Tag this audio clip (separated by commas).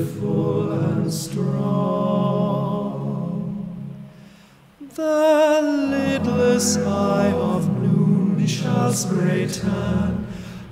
Tender music, Music